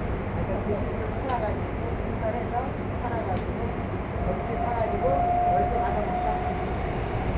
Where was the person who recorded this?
on a subway train